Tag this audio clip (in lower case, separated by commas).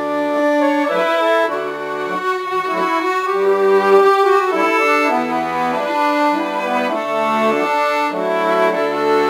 musical instrument, music, violin